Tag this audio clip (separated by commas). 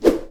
swoosh